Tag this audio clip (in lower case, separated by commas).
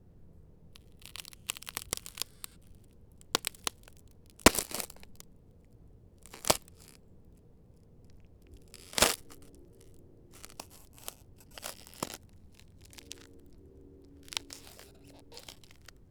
crack